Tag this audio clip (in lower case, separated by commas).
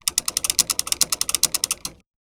vehicle, mechanisms, bicycle